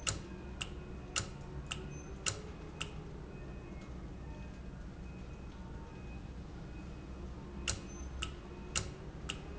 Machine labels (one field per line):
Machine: valve